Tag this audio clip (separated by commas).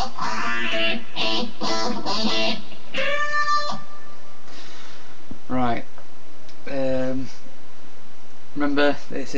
Electric guitar, Musical instrument, Speech, Strum, Plucked string instrument, Guitar, Music